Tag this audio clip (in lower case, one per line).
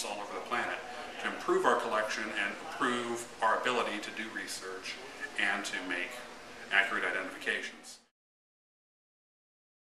speech